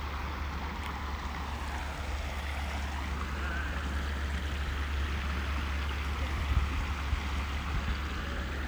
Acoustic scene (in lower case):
park